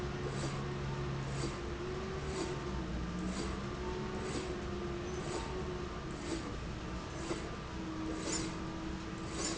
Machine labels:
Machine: slide rail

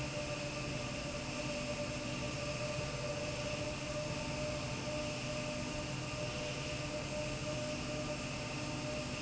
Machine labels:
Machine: slide rail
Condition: normal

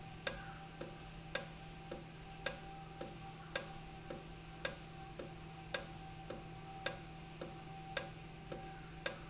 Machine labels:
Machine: valve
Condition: normal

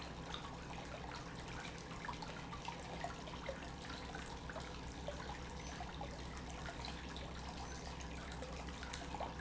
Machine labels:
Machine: pump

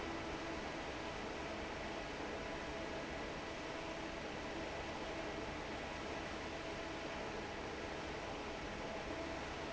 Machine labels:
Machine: fan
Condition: normal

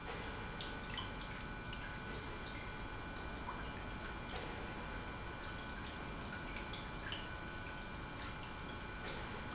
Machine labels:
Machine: pump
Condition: normal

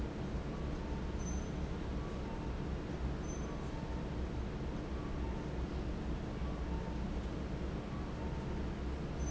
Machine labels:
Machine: fan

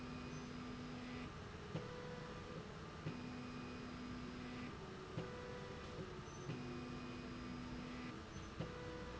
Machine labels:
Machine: slide rail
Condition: normal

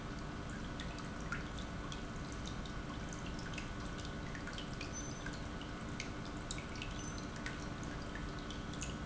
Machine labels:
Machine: pump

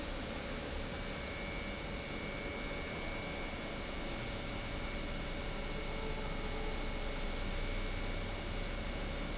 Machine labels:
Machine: pump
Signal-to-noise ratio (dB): -6 dB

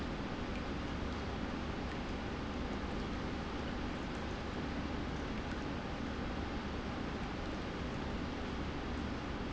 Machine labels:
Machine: pump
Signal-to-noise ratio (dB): -6 dB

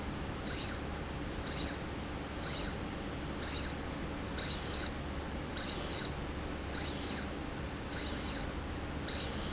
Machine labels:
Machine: slide rail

